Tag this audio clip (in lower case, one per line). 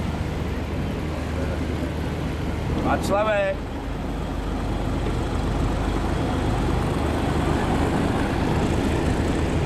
speech
sailing ship